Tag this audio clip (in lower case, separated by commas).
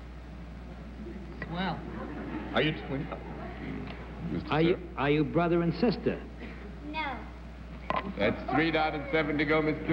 speech